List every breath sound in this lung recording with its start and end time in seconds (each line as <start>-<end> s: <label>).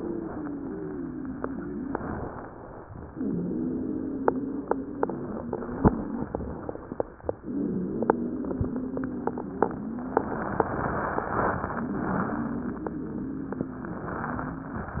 0.00-1.82 s: exhalation
0.00-1.82 s: wheeze
1.97-2.83 s: inhalation
3.13-6.22 s: wheeze
7.46-10.55 s: wheeze
11.76-14.86 s: wheeze